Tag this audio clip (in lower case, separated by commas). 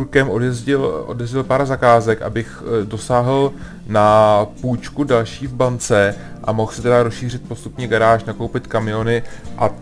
music, speech